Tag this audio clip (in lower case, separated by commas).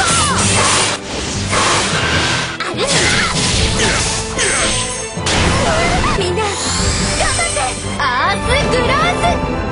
speech, music